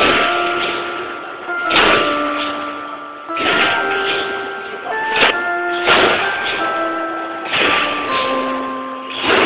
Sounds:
medium engine (mid frequency), music, engine

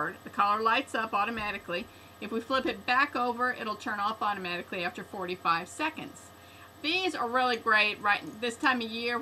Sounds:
speech

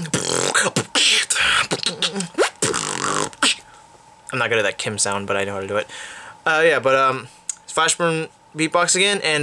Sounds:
music, speech

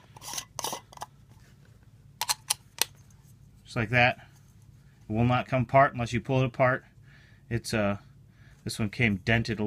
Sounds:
speech, inside a small room

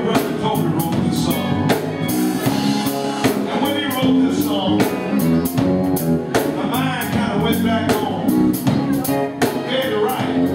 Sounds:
music, male singing

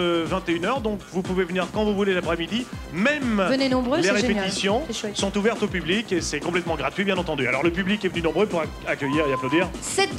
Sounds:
speech, music

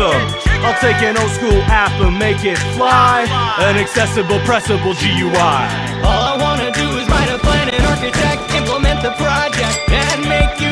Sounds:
hip hop music, music

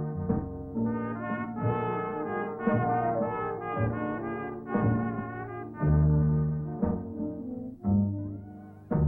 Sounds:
music

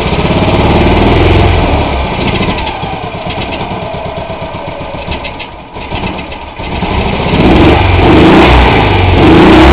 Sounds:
vroom, vehicle, idling, heavy engine (low frequency)

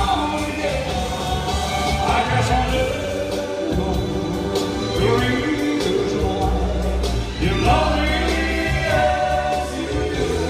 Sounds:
singing, music

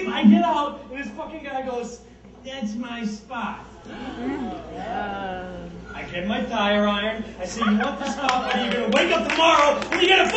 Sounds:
speech, narration

